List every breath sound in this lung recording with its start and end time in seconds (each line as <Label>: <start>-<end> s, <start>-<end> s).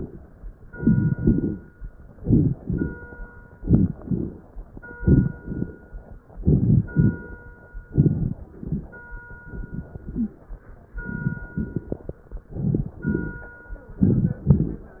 Inhalation: 0.78-1.18 s, 2.20-2.60 s, 3.59-3.99 s, 5.01-5.41 s, 6.41-6.81 s, 7.89-8.33 s, 9.37-9.95 s, 11.03-11.60 s, 12.58-13.01 s, 14.00-14.46 s
Exhalation: 1.20-1.60 s, 2.68-3.08 s, 4.02-4.42 s, 5.39-5.79 s, 6.91-7.31 s, 8.48-8.92 s, 9.93-10.39 s, 11.61-12.19 s, 13.09-13.52 s, 14.50-14.92 s
Crackles: 0.78-1.18 s, 1.20-1.60 s, 2.20-2.60 s, 2.68-3.08 s, 3.59-3.99 s, 4.02-4.42 s, 4.97-5.37 s, 5.39-5.79 s, 6.41-6.81 s, 6.91-7.31 s, 7.89-8.33 s, 8.48-8.92 s, 9.41-9.88 s, 9.93-10.39 s, 11.03-11.60 s, 11.61-12.19 s, 12.58-13.01 s, 13.09-13.52 s, 14.00-14.46 s, 14.50-14.92 s